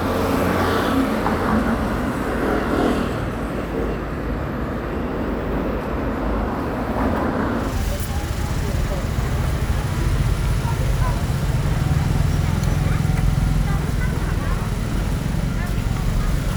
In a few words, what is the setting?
residential area